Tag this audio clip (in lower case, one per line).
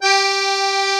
musical instrument
music
accordion